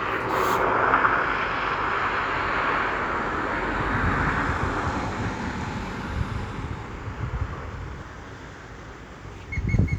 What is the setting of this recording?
street